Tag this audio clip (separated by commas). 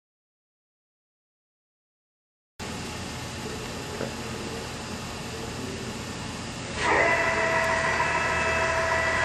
Speech